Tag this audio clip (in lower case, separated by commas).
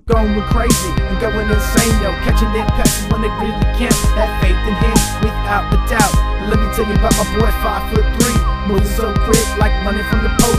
music